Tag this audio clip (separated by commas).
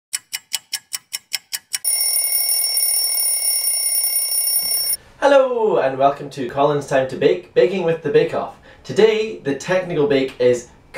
inside a small room, Speech